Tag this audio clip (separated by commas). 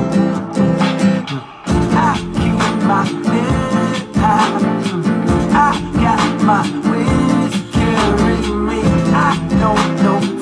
Music